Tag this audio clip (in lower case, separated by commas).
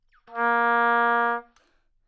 musical instrument, wind instrument, music